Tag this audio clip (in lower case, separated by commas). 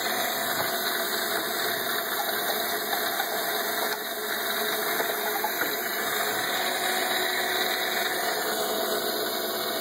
pump (liquid)